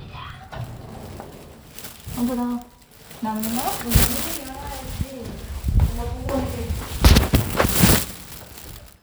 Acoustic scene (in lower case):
elevator